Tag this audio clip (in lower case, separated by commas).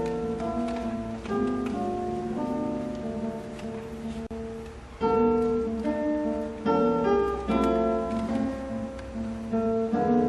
musical instrument, acoustic guitar, guitar, plucked string instrument, strum, music